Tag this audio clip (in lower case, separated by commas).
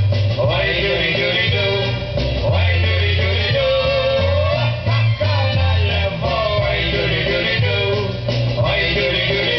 traditional music, music